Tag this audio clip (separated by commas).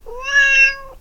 Cat, pets, Meow, Animal